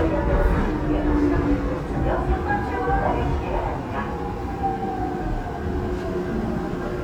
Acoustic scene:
subway train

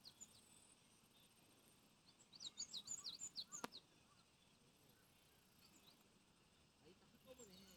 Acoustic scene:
park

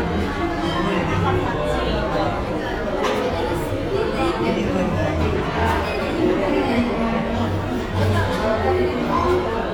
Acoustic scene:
cafe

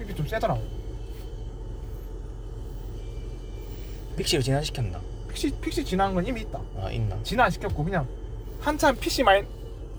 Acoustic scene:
car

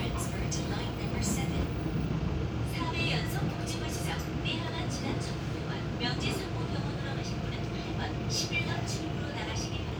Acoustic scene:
subway train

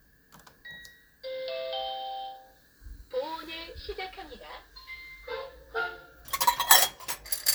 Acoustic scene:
kitchen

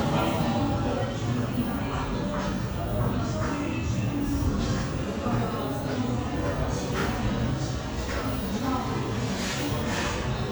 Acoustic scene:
crowded indoor space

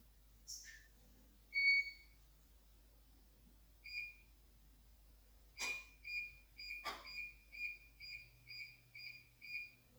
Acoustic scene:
kitchen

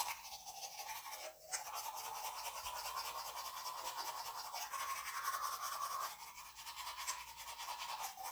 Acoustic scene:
restroom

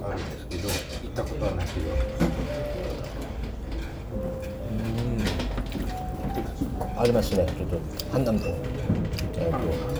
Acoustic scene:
restaurant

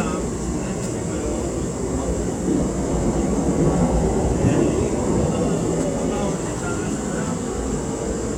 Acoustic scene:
subway train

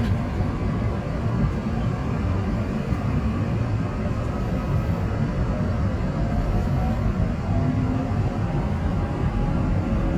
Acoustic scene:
subway train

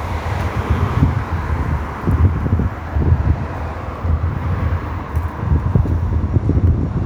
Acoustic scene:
street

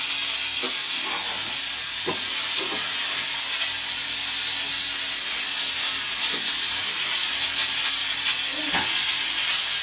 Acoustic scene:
kitchen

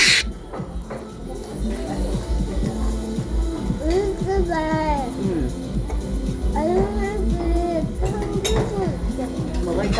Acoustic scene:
restaurant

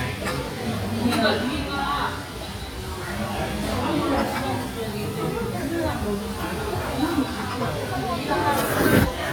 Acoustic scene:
restaurant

